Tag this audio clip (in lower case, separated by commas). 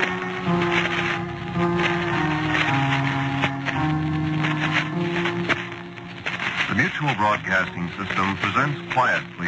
speech, music